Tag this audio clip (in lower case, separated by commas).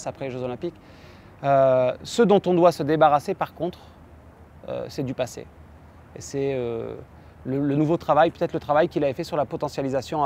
speech